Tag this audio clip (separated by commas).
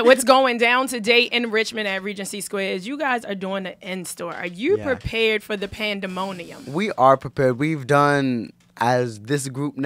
Speech